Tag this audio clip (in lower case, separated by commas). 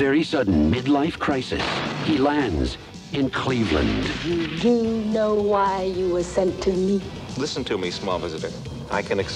speech, music